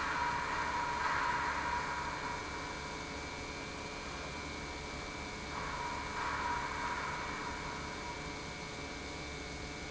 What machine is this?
pump